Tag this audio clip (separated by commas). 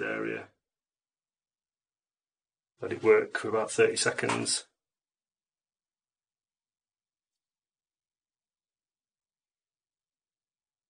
Speech